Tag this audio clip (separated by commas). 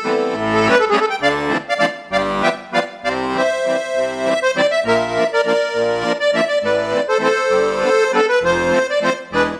playing accordion